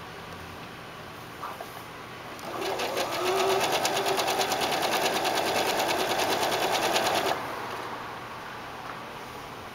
A sewing machine is being used slowly